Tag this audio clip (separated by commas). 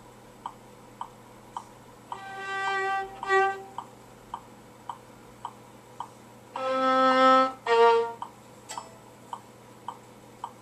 fiddle, Music, Musical instrument